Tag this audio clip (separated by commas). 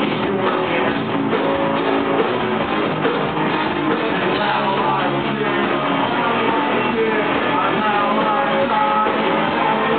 Music, Male singing